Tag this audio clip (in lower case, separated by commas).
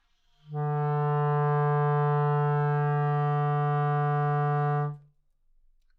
music, wind instrument, musical instrument